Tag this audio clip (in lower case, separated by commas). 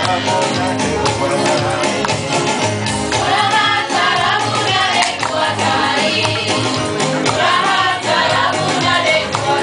gospel music, music